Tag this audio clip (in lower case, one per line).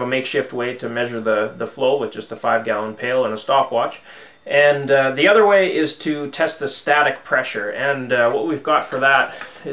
speech